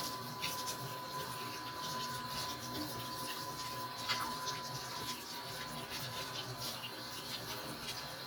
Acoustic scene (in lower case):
kitchen